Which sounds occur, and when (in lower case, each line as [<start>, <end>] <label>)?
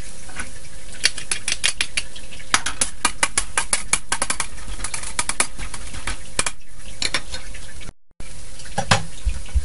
[0.00, 7.88] mechanisms
[0.00, 7.89] sizzle
[0.22, 0.50] generic impact sounds
[0.97, 1.99] silverware
[2.48, 2.84] silverware
[3.02, 3.97] silverware
[4.10, 4.43] silverware
[4.56, 5.44] silverware
[5.57, 6.12] silverware
[6.34, 6.48] silverware
[6.85, 7.44] silverware
[8.16, 9.64] mechanisms
[8.18, 9.64] sizzle
[8.60, 9.00] silverware
[9.15, 9.30] generic impact sounds
[9.50, 9.64] generic impact sounds